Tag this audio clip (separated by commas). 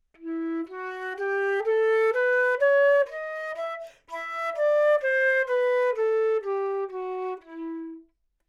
Wind instrument, Music, Musical instrument